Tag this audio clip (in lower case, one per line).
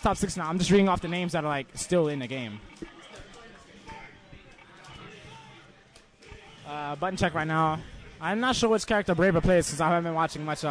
speech